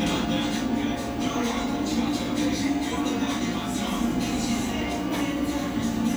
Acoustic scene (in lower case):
cafe